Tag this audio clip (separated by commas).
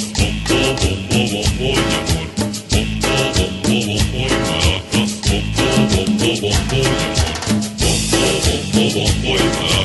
playing drum kit, Snare drum, Drum, Bass drum, Percussion, Drum kit